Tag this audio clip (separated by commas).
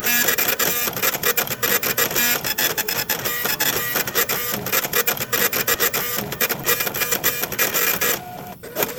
Mechanisms, Printer